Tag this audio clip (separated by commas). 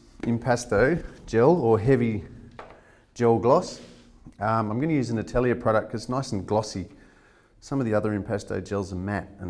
Speech